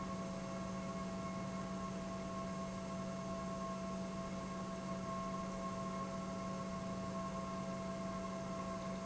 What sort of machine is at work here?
pump